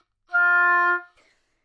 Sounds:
music, musical instrument, woodwind instrument

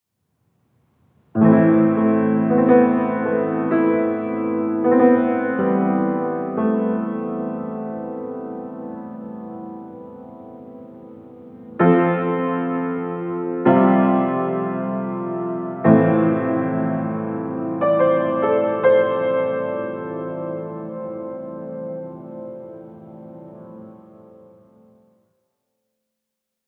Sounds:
keyboard (musical), music, musical instrument

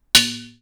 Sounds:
dishes, pots and pans, domestic sounds

